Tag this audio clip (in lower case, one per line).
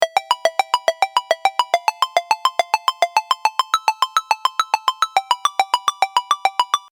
ringtone
alarm
telephone